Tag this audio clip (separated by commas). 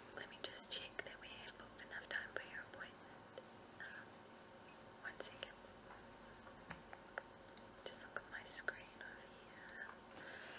Speech, Whispering